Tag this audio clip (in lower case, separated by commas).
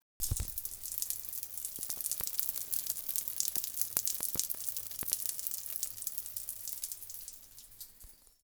rain, water